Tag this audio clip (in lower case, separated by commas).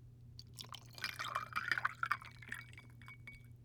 glass